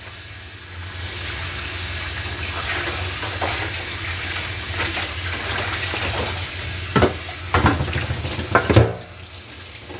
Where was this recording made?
in a kitchen